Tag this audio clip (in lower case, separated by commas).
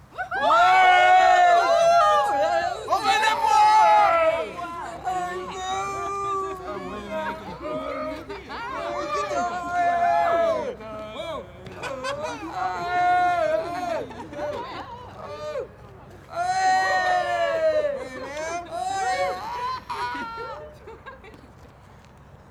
cheering, human group actions